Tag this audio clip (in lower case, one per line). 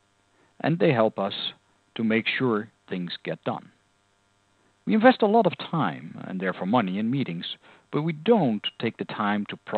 speech